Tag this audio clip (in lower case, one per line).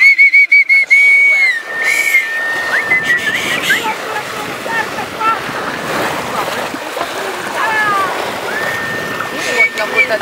slosh
speech
boat
ocean